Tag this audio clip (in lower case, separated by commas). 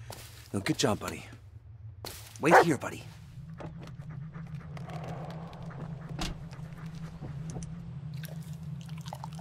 opening or closing car doors